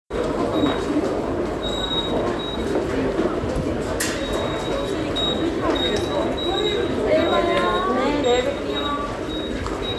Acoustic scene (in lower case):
subway station